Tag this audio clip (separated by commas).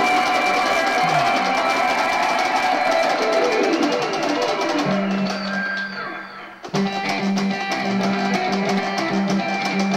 Musical instrument, Electric guitar, Music, Plucked string instrument